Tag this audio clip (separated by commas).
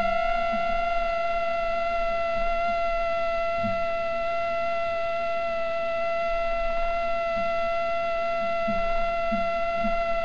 mosquito buzzing